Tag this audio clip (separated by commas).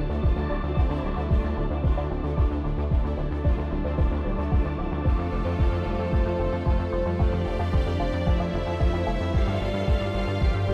Music